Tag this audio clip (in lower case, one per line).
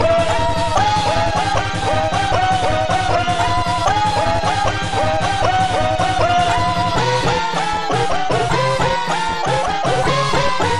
sound effect